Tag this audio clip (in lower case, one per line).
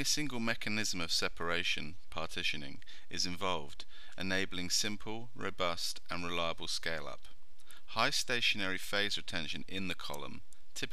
speech